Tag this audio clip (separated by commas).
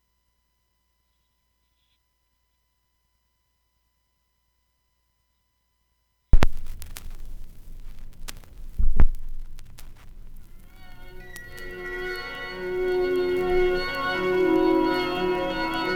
Crackle